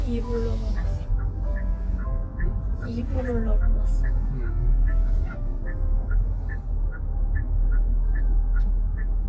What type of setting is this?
car